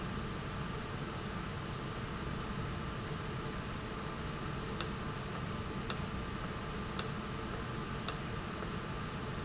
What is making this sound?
valve